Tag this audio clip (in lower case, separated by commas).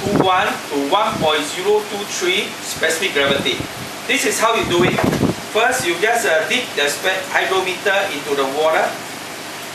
speech, gurgling